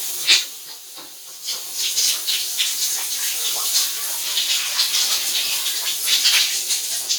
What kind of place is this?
restroom